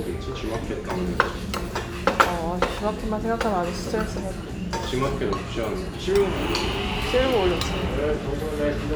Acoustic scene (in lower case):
restaurant